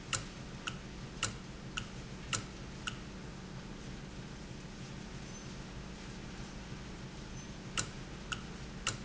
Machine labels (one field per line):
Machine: valve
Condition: normal